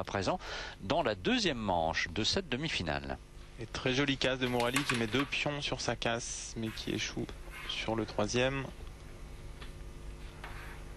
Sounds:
Speech

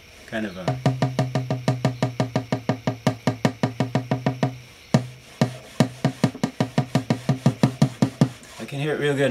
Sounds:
Speech

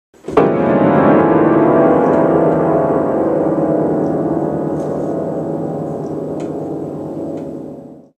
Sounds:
Music

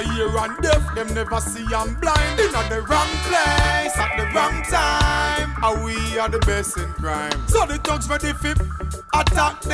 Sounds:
Music, Reggae

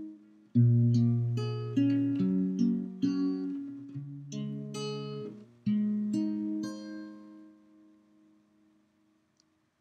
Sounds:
Music

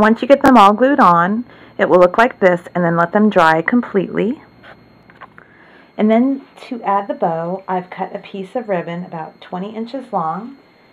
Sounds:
Speech, inside a small room

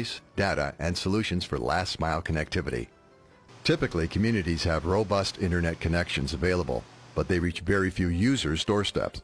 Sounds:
Music, Speech

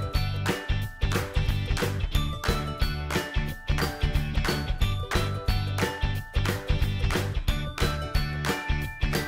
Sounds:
Music

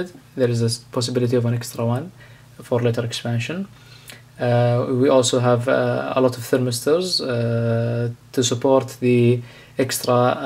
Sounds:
Speech

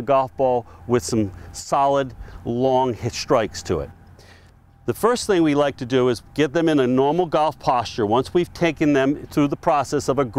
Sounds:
Speech

